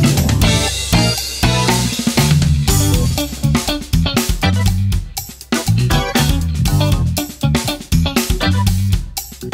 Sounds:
playing drum kit, Snare drum, Heavy metal, Music, Drum kit, Musical instrument

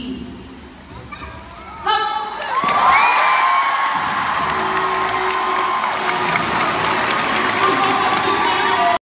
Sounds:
Speech, Music, Slosh, Water

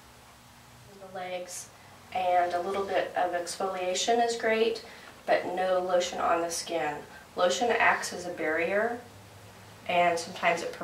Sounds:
Speech

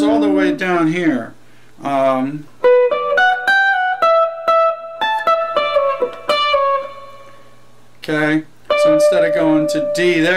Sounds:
Musical instrument, Music, Electric guitar, Speech

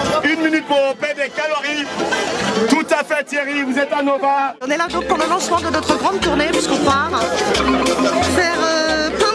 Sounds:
Speech, Music

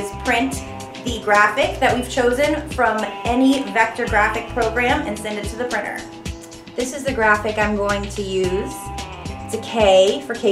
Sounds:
Music, Speech

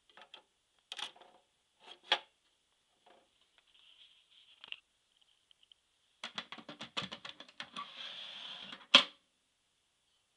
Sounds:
inside a small room

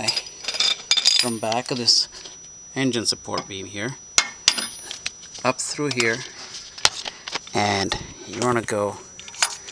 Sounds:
Speech

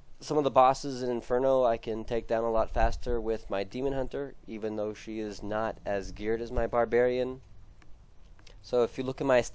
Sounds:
Speech

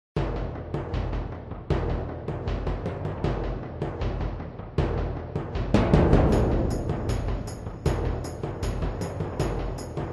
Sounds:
Timpani, Music

